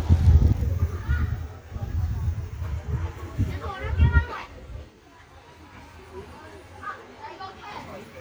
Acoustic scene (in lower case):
park